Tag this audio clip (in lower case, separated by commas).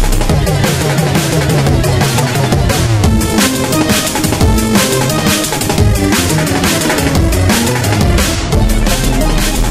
drum, bass drum, snare drum, percussion, drum roll, rimshot, drum kit